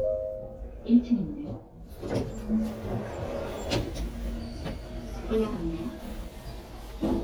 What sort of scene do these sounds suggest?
elevator